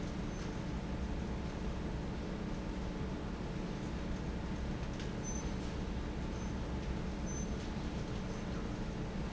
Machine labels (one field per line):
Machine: fan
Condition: normal